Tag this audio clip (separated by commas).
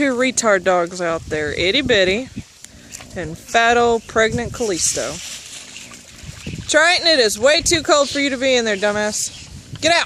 Speech, Animal